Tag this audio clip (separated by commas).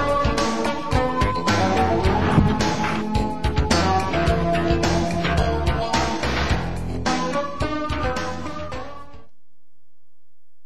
Music